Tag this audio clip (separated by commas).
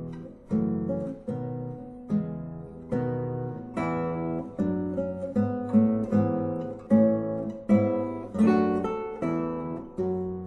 Musical instrument, Guitar, Plucked string instrument, Music, Acoustic guitar